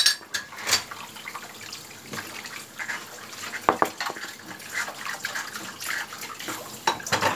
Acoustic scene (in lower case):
kitchen